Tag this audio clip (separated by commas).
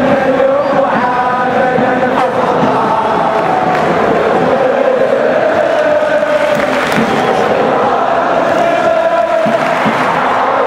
Mantra